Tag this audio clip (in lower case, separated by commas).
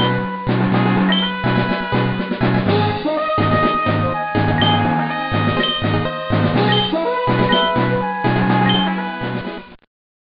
music